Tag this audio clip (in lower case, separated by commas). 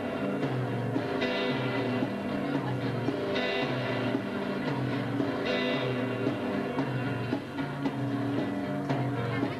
music, speech